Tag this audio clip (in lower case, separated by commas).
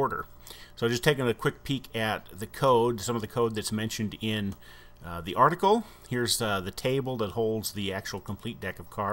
speech